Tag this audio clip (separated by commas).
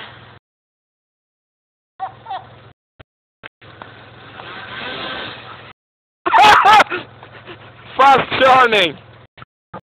Speech